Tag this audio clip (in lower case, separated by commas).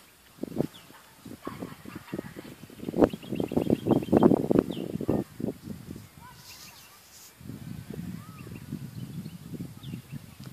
outside, rural or natural, speech, animal